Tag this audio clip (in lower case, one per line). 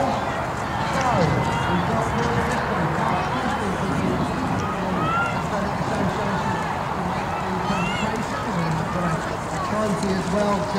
speech